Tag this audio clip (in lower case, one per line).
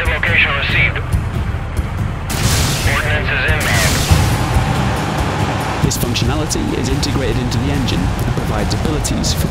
music
speech